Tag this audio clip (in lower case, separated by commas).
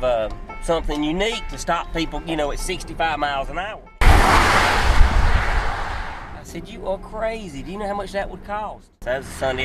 music, speech, outside, rural or natural